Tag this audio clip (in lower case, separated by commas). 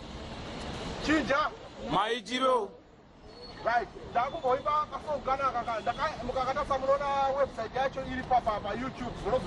man speaking, monologue, speech